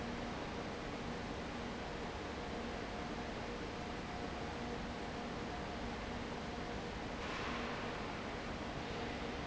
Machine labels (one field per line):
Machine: fan